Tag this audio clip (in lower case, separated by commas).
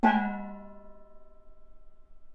music, musical instrument, percussion, gong